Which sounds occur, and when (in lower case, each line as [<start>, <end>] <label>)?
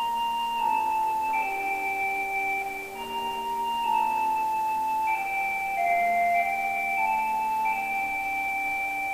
[0.00, 9.13] background noise
[0.00, 9.13] music